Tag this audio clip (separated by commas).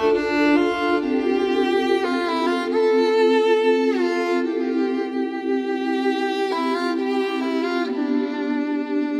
Music